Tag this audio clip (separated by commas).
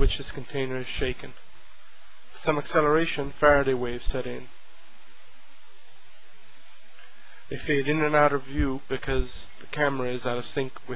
Speech